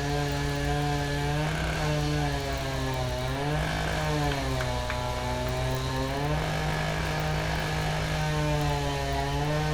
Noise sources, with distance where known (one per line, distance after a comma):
unidentified impact machinery, near
unidentified powered saw, near